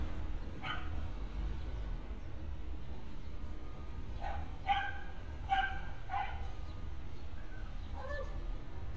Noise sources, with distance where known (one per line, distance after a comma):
dog barking or whining, near